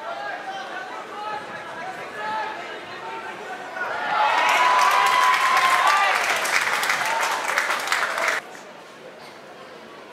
An adult male speak excitedly and a crowd applauds